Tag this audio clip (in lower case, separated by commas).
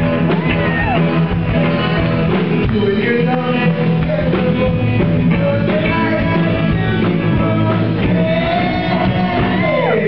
male singing, music